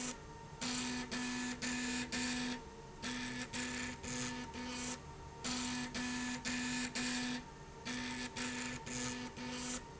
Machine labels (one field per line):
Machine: slide rail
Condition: abnormal